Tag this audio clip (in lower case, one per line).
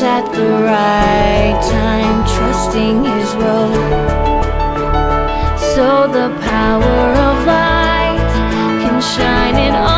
music